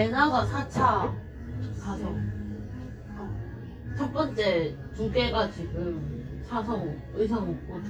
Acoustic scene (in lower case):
cafe